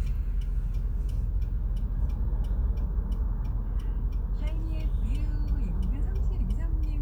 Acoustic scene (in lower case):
car